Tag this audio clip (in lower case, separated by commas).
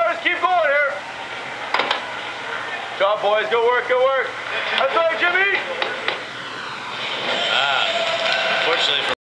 speech